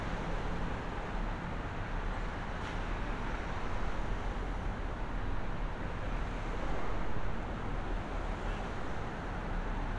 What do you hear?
engine of unclear size